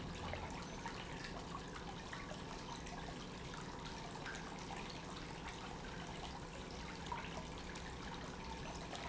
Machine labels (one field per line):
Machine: pump